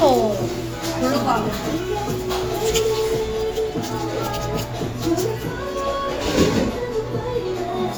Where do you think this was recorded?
in a cafe